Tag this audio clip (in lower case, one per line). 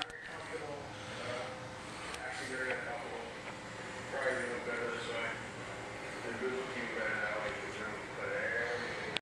speech